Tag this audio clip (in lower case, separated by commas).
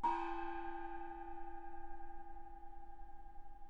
percussion, musical instrument, music, gong